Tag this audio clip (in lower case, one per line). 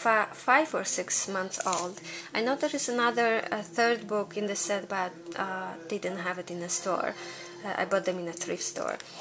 inside a small room
speech